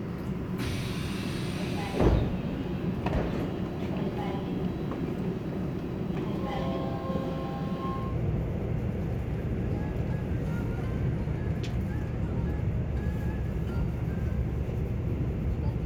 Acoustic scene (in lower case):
subway train